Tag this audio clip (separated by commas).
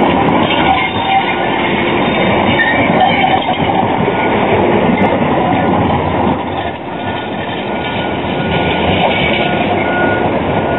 Vehicle, Train